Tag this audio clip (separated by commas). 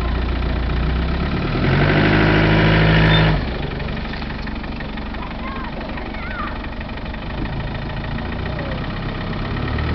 Vehicle, Speech, Car